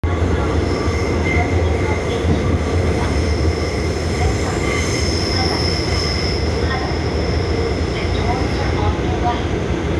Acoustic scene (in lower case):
subway train